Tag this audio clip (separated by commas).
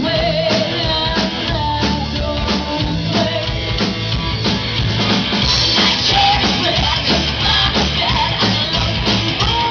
Music